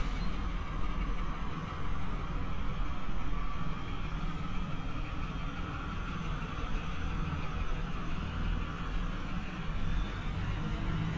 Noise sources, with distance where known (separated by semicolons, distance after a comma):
engine of unclear size, near